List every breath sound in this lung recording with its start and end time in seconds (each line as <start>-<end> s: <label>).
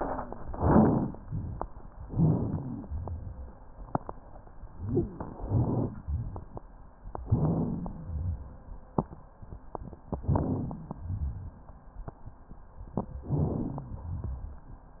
0.40-1.10 s: inhalation
0.40-1.10 s: crackles
2.05-2.89 s: inhalation
2.05-2.89 s: crackles
2.85-3.57 s: exhalation
2.85-3.57 s: rhonchi
5.20-6.07 s: inhalation
5.20-6.07 s: crackles
6.03-6.47 s: exhalation
6.03-6.47 s: rhonchi
7.21-8.08 s: inhalation
7.21-8.08 s: crackles
8.06-8.62 s: exhalation
8.06-8.62 s: rhonchi
10.19-11.06 s: inhalation
10.19-11.06 s: crackles
11.02-11.57 s: exhalation
11.02-11.57 s: rhonchi
13.24-13.97 s: inhalation
13.24-13.97 s: crackles
14.00-14.55 s: exhalation
14.00-14.55 s: rhonchi